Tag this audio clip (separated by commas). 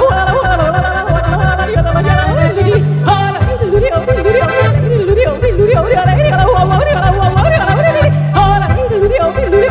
yodelling